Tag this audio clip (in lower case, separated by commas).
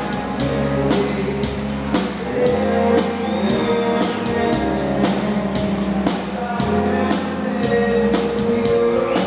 music